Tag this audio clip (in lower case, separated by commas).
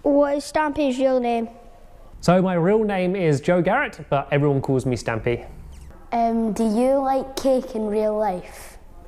speech